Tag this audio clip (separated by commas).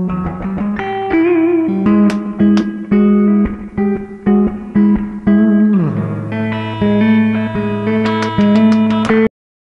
Music